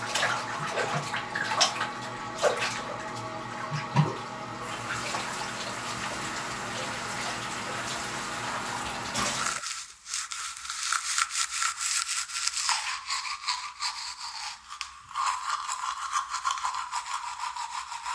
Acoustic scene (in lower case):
restroom